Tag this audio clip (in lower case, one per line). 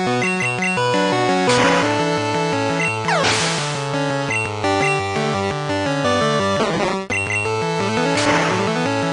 music